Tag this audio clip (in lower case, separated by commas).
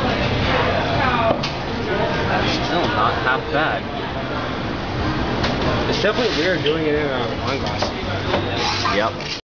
speech